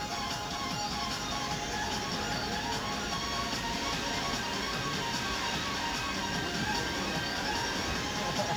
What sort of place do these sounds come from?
park